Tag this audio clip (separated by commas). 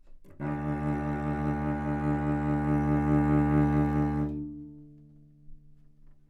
Music, Bowed string instrument, Musical instrument